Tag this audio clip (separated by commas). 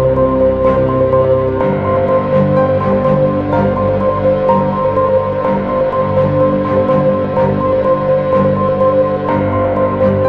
Music